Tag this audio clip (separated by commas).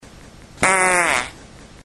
Fart